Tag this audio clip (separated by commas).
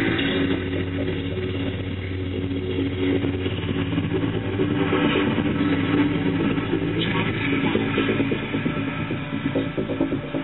Music